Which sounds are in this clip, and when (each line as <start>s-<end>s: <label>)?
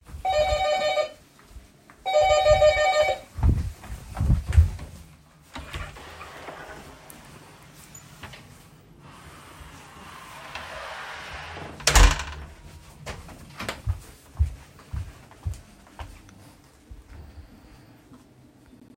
0.0s-1.2s: bell ringing
2.0s-3.3s: bell ringing
3.2s-5.2s: footsteps
5.5s-12.6s: door
12.6s-17.4s: footsteps